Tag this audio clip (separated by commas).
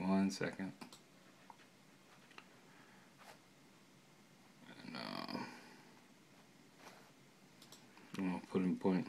Speech